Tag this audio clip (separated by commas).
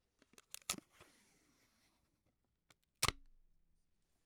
home sounds, Packing tape